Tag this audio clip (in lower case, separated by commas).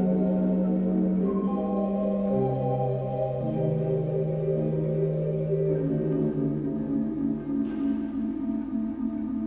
keyboard (musical), ambient music, piano, musical instrument, music